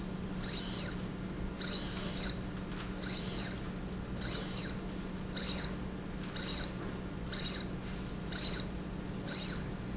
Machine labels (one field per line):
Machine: slide rail